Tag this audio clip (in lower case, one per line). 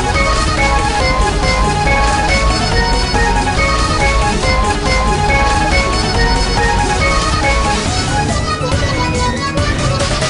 music